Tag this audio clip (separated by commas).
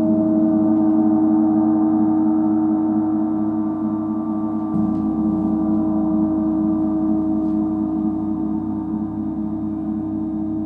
playing gong